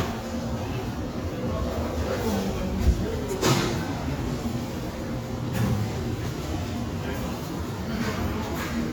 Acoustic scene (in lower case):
subway station